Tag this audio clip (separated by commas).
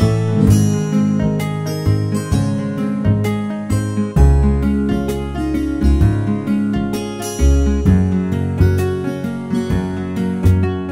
Music